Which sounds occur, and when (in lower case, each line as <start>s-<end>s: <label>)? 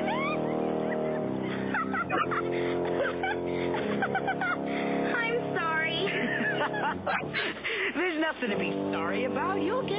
0.0s-0.4s: shout
0.0s-7.6s: mechanisms
0.5s-1.2s: laughter
1.4s-1.7s: breathing
1.7s-2.3s: laughter
2.5s-3.1s: breathing
2.8s-3.3s: laughter
3.4s-4.0s: breathing
3.7s-4.5s: laughter
4.7s-5.2s: breathing
5.0s-6.0s: female speech
5.1s-9.9s: conversation
5.9s-6.3s: breathing
6.1s-7.9s: laughter
7.3s-7.9s: breathing
8.0s-8.7s: man speaking
8.4s-9.9s: mechanisms
8.9s-9.9s: man speaking